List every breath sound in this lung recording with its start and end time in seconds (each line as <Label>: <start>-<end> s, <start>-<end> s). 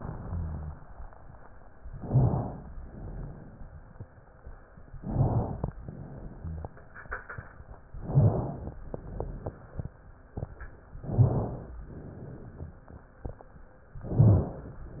Inhalation: 1.94-2.68 s, 4.95-5.69 s, 7.95-8.77 s, 10.99-11.80 s, 14.02-14.82 s
Exhalation: 0.19-0.80 s, 2.81-3.55 s, 5.81-6.62 s, 8.82-9.64 s, 11.86-12.77 s
Rhonchi: 0.19-0.80 s